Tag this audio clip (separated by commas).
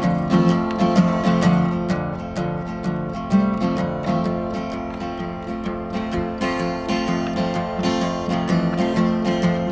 Music